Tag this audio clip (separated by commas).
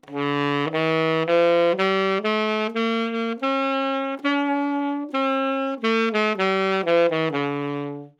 Musical instrument, Wind instrument, Music